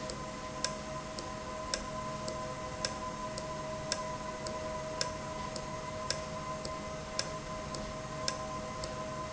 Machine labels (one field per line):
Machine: valve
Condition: normal